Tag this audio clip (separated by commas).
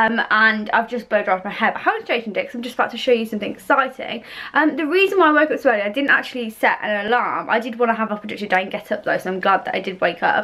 Speech